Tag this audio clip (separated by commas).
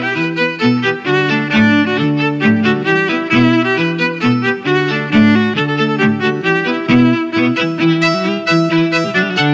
Musical instrument, Music, Violin